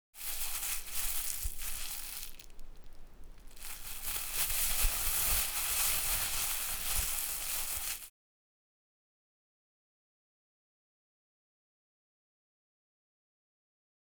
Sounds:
Crumpling

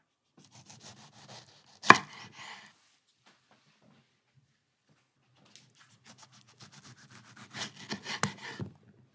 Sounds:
Domestic sounds

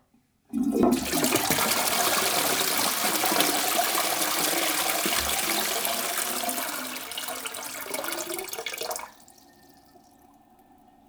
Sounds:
Domestic sounds, Toilet flush

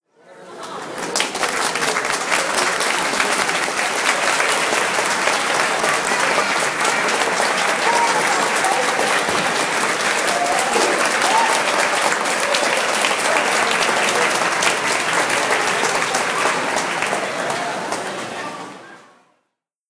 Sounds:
Applause, Human group actions, Cheering

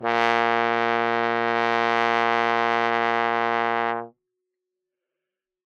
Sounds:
Musical instrument, Music, Brass instrument

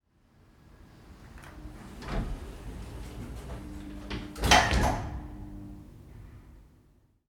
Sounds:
Sliding door, Door, Slam, Domestic sounds

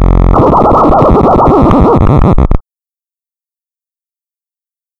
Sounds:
Musical instrument, Music, Scratching (performance technique)

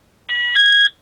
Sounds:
Alarm

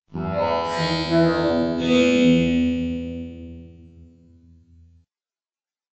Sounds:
Human voice, Speech synthesizer, Speech

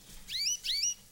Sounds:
bird call, Animal, tweet, Wild animals, Bird

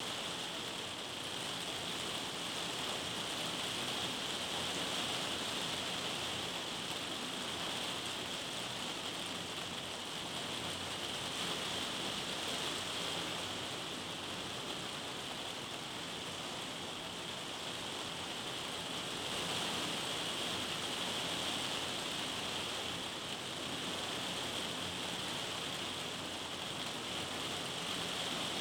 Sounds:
Water, Rain

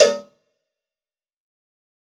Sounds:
Bell, Cowbell

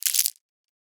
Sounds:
Crumpling

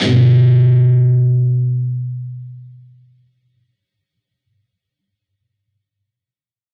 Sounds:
Music, Plucked string instrument, Musical instrument, Guitar

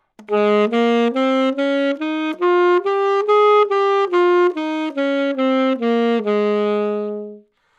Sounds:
woodwind instrument, Musical instrument, Music

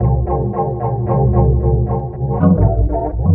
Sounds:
Organ, Music, Musical instrument, Keyboard (musical)

